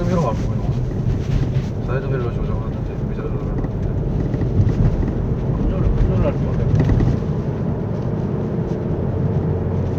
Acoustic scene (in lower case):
car